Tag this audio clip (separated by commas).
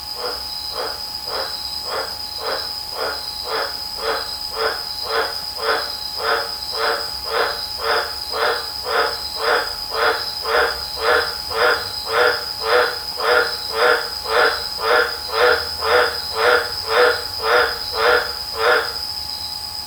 Wild animals, Animal, Frog